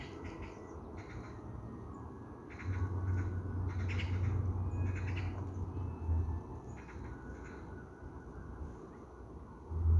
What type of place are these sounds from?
park